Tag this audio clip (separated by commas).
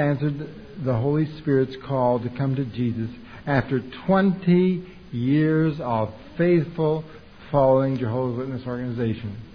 Speech